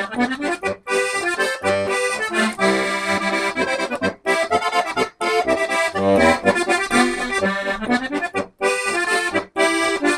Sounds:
accordion, playing accordion

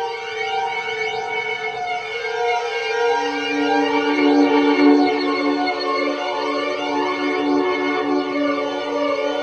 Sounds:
music

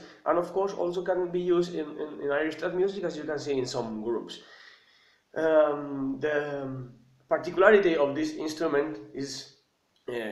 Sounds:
speech

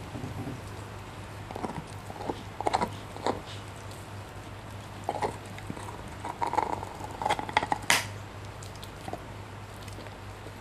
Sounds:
mastication, animal, dog

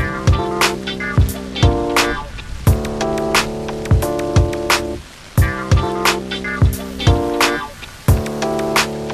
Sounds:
music

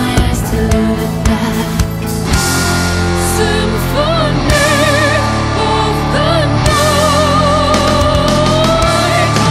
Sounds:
heavy metal, music

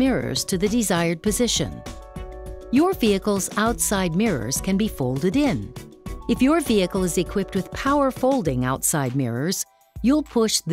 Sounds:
music, speech

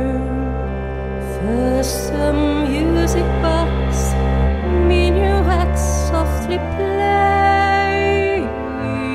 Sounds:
music, tender music

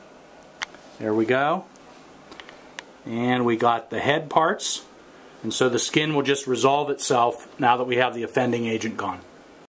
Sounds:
speech

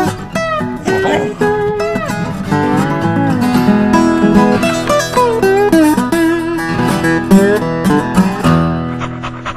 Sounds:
yip, music

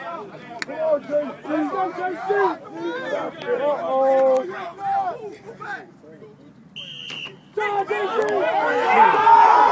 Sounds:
speech

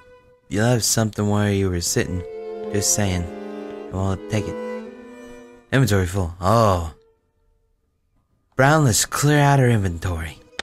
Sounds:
bowed string instrument, music, speech, cello

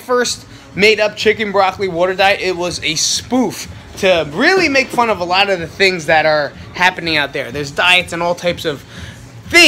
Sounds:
speech

